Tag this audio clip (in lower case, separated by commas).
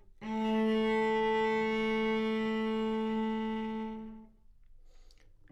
music, bowed string instrument, musical instrument